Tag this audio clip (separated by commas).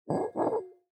Glass